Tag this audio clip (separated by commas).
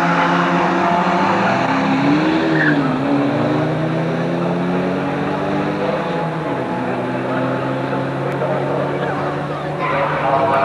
Motor vehicle (road), Car, Vehicle